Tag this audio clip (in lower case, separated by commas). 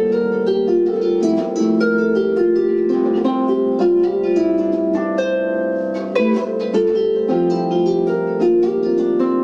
playing harp